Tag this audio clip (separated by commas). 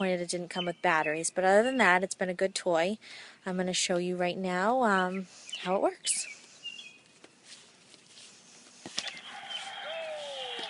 Speech